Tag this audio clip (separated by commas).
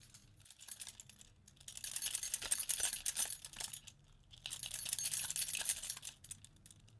home sounds, Keys jangling